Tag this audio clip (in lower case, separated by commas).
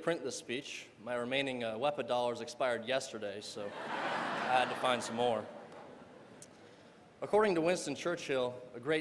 speech, monologue, man speaking